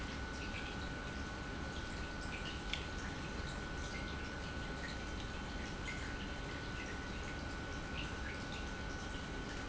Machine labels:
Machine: pump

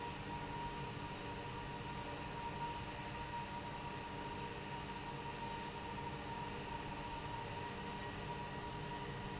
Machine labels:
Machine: fan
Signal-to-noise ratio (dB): 0 dB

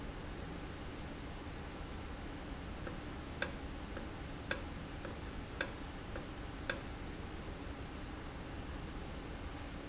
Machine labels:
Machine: valve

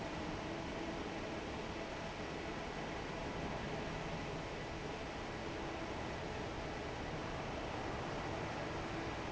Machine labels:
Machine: fan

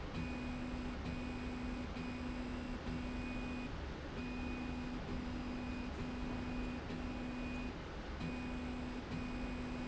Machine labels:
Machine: slide rail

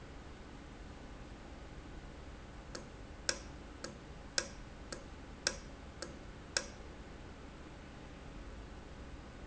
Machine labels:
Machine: valve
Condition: normal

